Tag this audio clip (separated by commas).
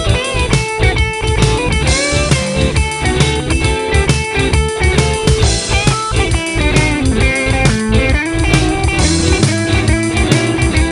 Music